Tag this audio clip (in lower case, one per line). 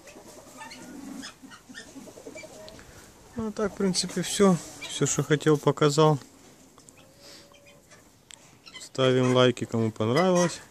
pheasant crowing